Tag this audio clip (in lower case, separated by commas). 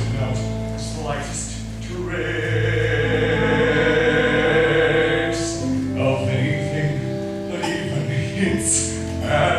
male singing, music